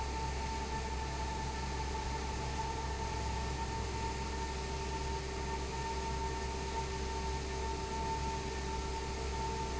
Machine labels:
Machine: fan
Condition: abnormal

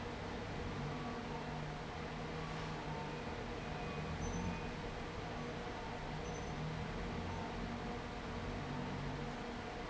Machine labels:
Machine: fan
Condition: abnormal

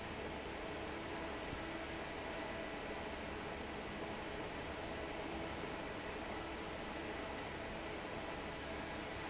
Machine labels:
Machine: fan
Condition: normal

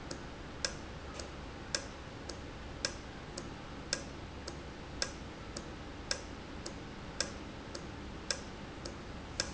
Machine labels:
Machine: valve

